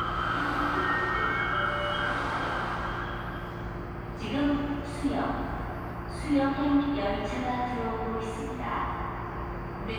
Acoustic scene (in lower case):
subway station